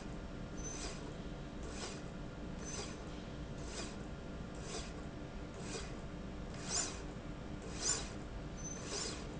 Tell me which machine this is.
slide rail